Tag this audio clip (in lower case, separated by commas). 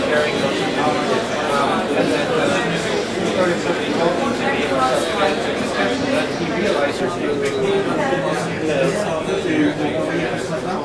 speech